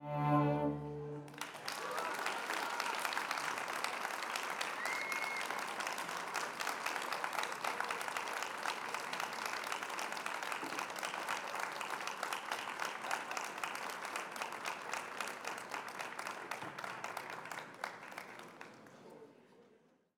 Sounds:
human group actions, applause

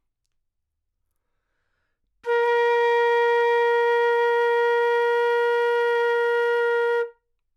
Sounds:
musical instrument, music, woodwind instrument

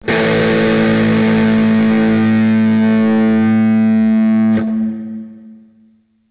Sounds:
guitar, musical instrument, plucked string instrument, music, electric guitar

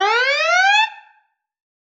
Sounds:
alarm

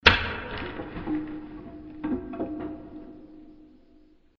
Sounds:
wood

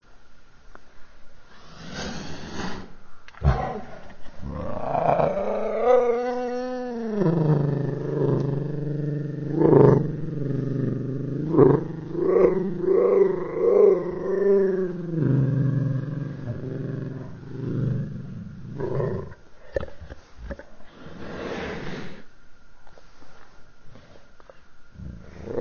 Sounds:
growling, animal

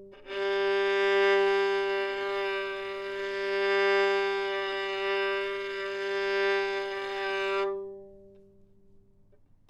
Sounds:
bowed string instrument, music, musical instrument

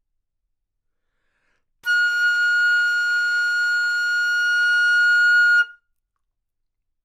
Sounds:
music, wind instrument, musical instrument

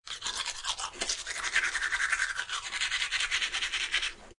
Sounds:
home sounds

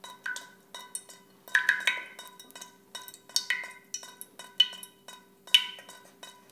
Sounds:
drip, liquid

